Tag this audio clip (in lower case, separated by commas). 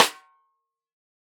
music, drum, musical instrument, percussion, snare drum